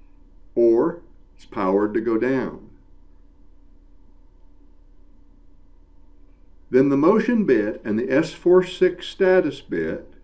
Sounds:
Speech

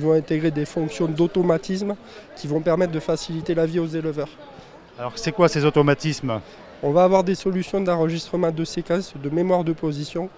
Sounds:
Speech

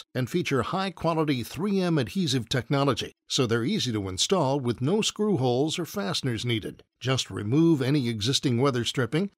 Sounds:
Speech

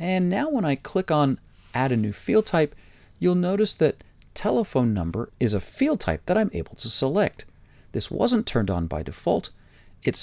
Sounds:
Speech

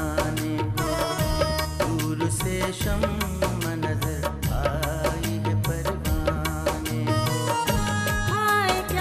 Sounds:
Music, Music of Bollywood, Singing

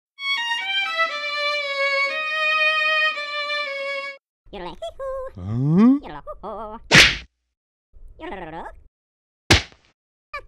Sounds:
smack

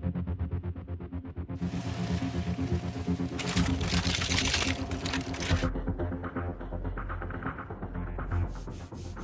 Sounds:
Music

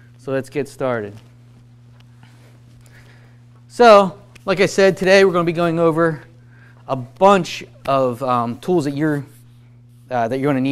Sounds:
Speech

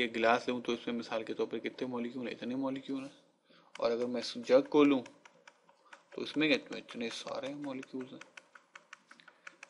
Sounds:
Speech, Computer keyboard

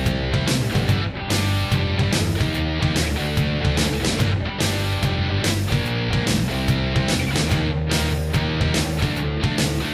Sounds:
Music, Soundtrack music

